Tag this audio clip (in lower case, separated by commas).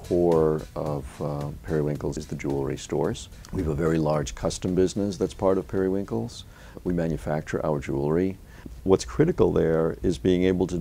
speech, music